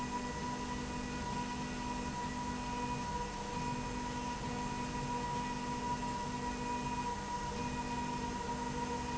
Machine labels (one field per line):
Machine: slide rail